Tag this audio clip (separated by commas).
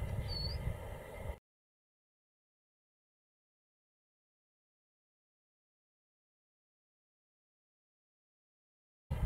black capped chickadee calling